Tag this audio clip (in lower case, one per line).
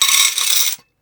domestic sounds
coin (dropping)